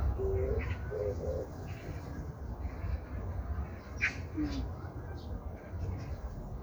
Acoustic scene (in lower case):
park